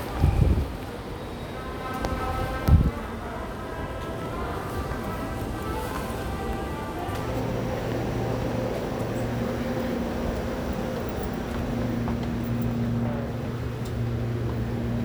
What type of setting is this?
subway station